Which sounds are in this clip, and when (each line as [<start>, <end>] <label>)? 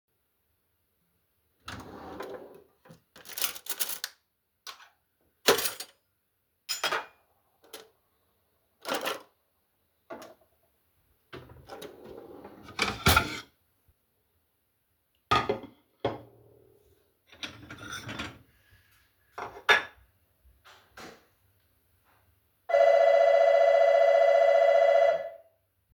[1.38, 2.70] wardrobe or drawer
[3.10, 10.54] cutlery and dishes
[11.20, 12.55] wardrobe or drawer
[12.62, 13.76] cutlery and dishes
[14.88, 20.46] cutlery and dishes
[22.41, 25.50] bell ringing